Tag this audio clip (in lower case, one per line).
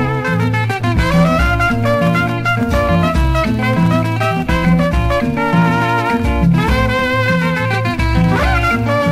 music